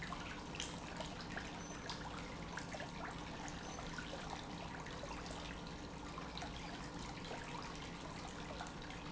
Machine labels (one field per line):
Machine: pump